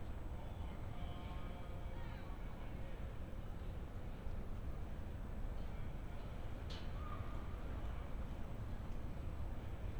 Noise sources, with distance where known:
unidentified human voice, far

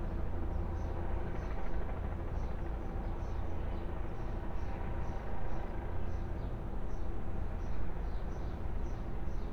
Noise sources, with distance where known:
engine of unclear size, far

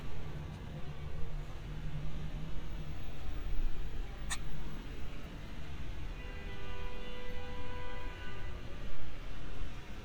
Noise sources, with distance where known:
car horn, far

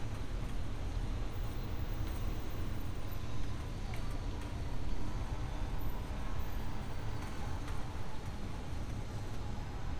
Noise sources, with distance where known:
non-machinery impact, far

